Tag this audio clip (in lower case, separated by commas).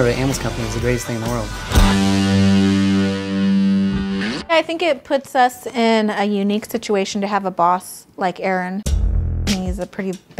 music, speech